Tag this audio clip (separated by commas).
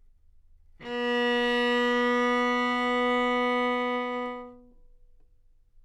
Musical instrument, Music, Bowed string instrument